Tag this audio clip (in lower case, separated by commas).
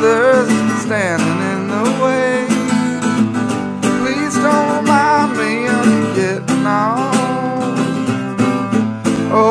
music